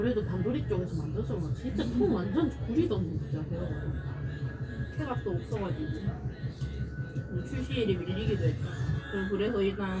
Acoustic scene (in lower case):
cafe